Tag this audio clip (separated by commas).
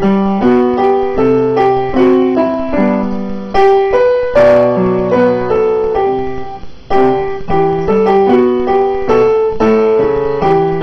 Music